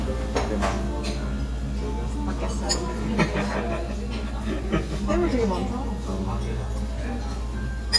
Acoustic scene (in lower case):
restaurant